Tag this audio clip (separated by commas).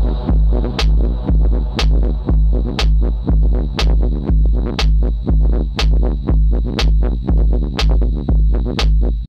Music